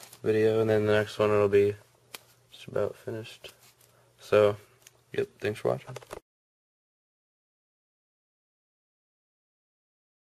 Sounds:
inside a small room
speech

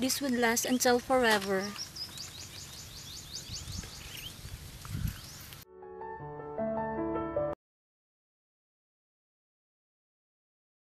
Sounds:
speech
outside, rural or natural
music

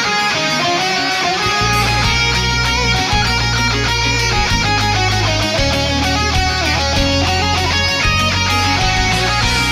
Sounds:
music

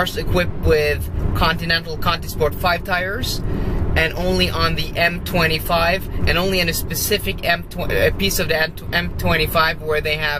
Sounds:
speech

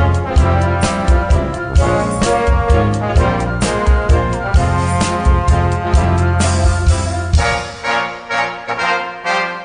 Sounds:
orchestra

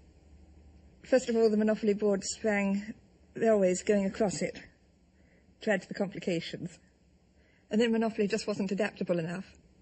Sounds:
woman speaking

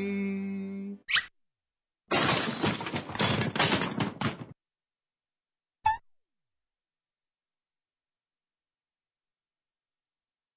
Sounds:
silence

